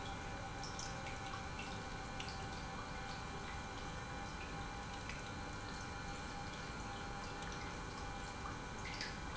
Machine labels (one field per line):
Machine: pump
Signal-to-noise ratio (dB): 6 dB